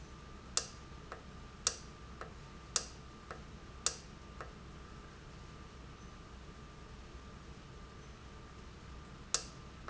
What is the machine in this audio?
valve